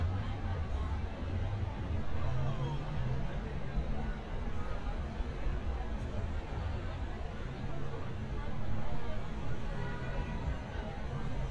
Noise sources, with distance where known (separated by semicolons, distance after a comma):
engine of unclear size; person or small group talking